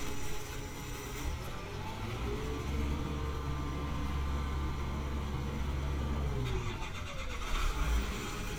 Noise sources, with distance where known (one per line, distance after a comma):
engine of unclear size, near